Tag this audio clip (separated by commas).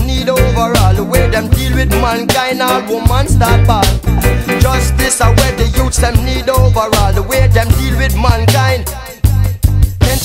Music of Africa, Music